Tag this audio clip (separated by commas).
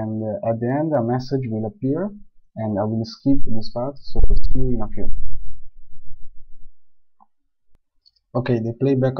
Speech